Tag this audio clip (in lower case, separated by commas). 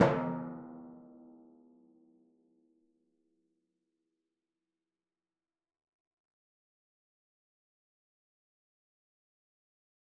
drum, percussion, musical instrument, music